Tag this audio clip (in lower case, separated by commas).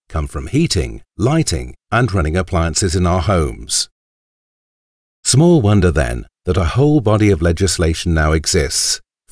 speech